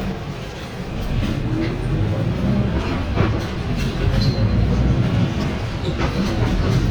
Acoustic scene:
bus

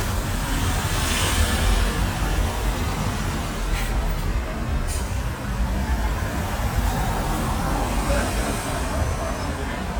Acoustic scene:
street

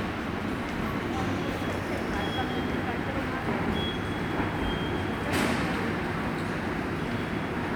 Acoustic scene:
subway station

